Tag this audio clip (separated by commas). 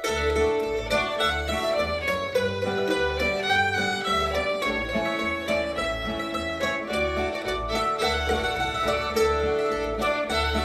Cello, Guitar, Musical instrument, Music, fiddle, Banjo, playing banjo, Bowed string instrument